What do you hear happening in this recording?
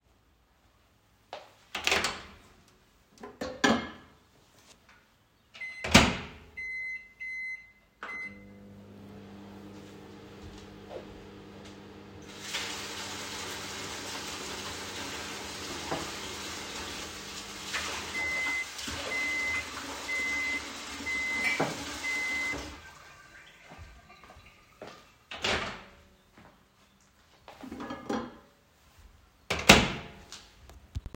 I opened the microwave, started it, and let it run. While it was running, I turned on the tap and filled a glass with water so both target sounds overlapped. After the water stopped, the microwave finished with a beep and I opened it again.